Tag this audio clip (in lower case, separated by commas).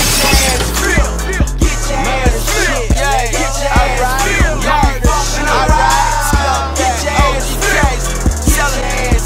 music